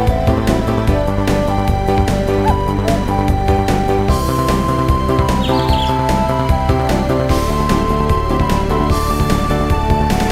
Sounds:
music

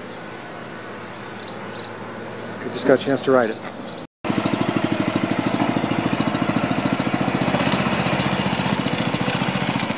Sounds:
vehicle, motorcycle

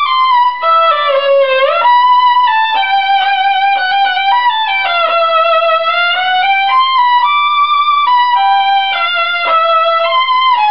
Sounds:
fiddle, musical instrument, music

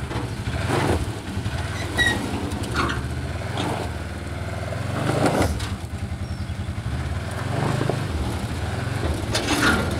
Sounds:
car

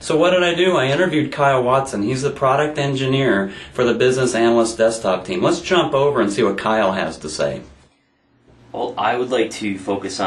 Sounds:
speech

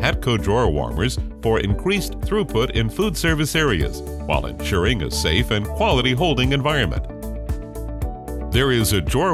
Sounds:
music, speech

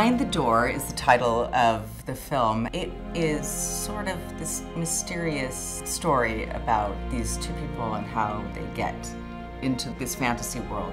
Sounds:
speech, music

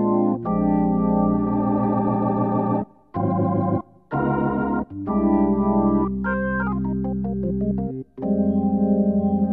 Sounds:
electronic organ, organ

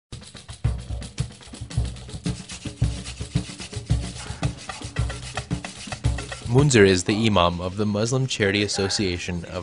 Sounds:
inside a large room or hall, music, speech

